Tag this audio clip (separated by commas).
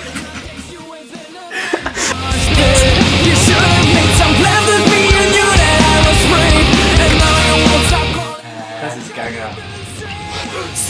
Music, Speech